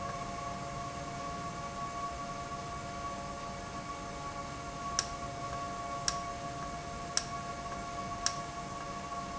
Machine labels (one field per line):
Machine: valve